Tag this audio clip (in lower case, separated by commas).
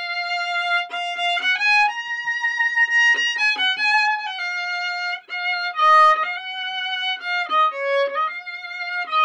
music, musical instrument, playing violin, fiddle